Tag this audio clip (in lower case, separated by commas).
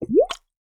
liquid, water, gurgling